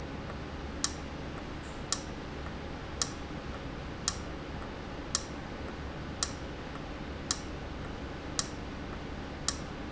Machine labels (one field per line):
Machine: valve